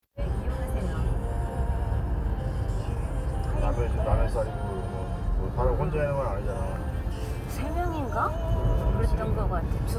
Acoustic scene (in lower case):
car